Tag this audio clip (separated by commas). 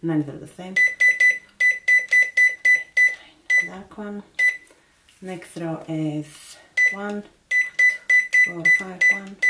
Speech